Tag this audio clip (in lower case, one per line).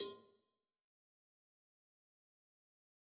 bell
cowbell